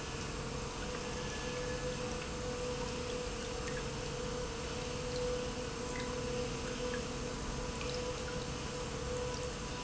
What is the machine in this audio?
pump